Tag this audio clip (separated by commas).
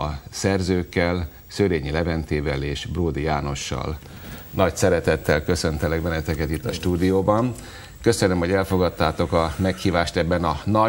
Speech